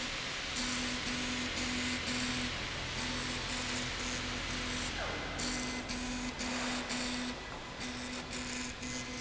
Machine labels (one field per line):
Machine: slide rail